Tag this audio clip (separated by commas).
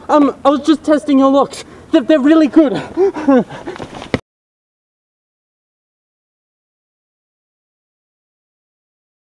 Speech